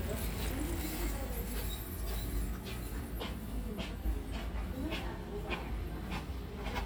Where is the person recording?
in a residential area